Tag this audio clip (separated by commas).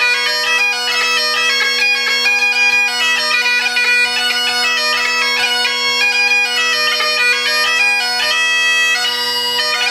Musical instrument, Bagpipes, Music